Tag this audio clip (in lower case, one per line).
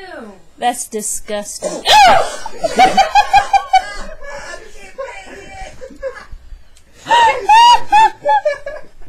speech
woman speaking